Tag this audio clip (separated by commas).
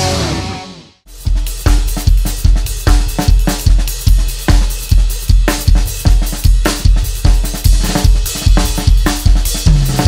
playing bass drum